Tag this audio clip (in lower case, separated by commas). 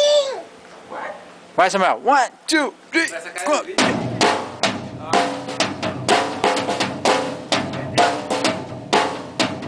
hi-hat, music, speech, drum, kid speaking, musical instrument, drum kit